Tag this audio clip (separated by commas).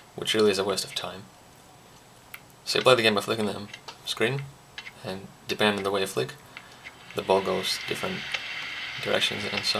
Speech